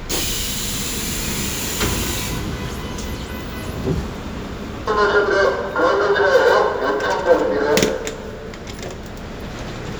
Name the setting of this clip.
subway train